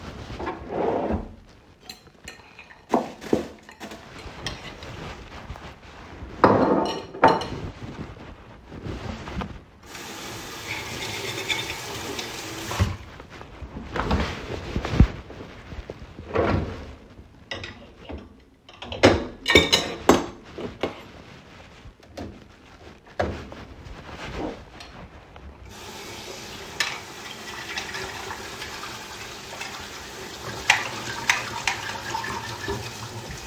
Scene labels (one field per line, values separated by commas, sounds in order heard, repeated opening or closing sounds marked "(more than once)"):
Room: kitchen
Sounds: wardrobe or drawer, cutlery and dishes, running water